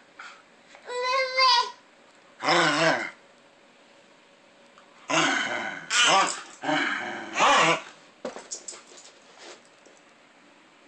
A child is speaking, and a dog is growling softly